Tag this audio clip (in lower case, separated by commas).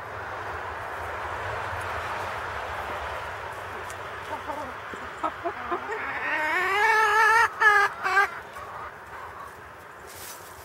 rooster, animal